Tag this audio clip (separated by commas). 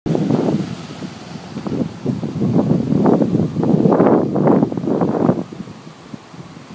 Gurgling